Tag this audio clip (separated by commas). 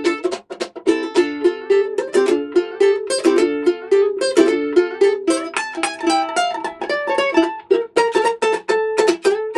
Guitar, Musical instrument, Plucked string instrument, Music, Ukulele